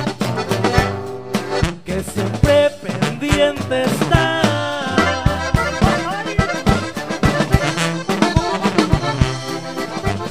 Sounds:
music
music of latin america

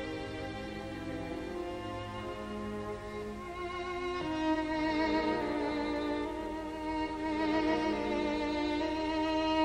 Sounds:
music
fiddle
musical instrument

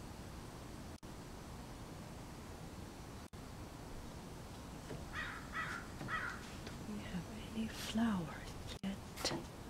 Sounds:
bird
speech
outside, rural or natural

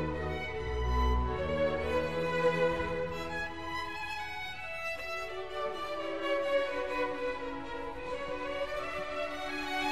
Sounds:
speech

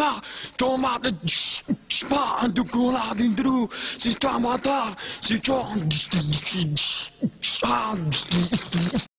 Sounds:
speech

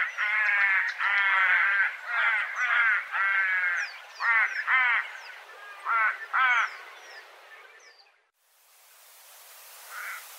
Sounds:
crow cawing

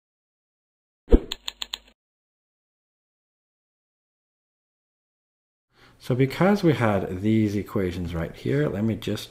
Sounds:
speech

